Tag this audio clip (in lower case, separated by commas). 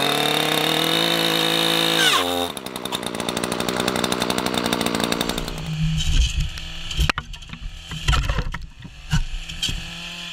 chainsawing trees